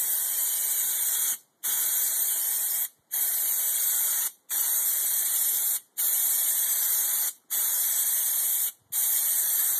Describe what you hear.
A pressurized can of something being sprayed